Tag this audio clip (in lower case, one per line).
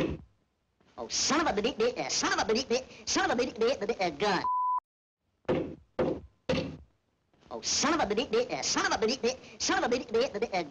speech